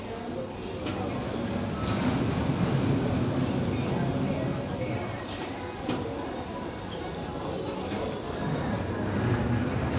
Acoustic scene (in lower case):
crowded indoor space